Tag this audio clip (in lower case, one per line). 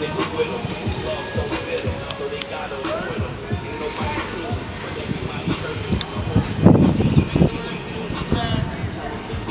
music